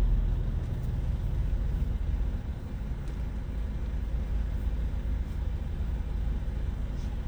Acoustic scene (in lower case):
car